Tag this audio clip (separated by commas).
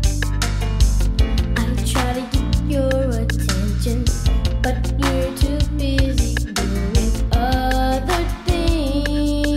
Music